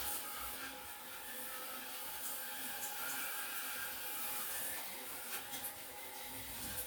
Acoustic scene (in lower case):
restroom